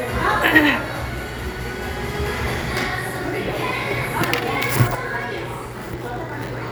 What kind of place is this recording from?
crowded indoor space